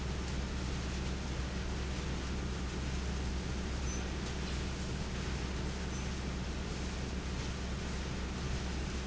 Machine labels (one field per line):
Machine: fan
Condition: abnormal